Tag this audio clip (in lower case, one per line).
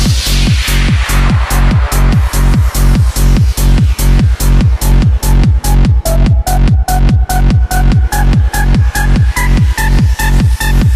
electronic music
music
techno
trance music